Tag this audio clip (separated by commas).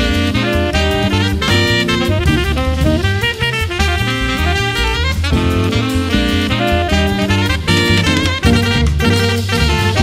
Swing music, Music, woodwind instrument, playing saxophone, Saxophone, Jazz